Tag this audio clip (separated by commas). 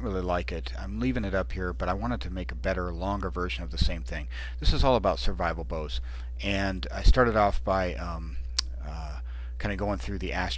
Speech